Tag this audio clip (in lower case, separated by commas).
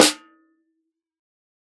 snare drum, music, percussion, musical instrument, drum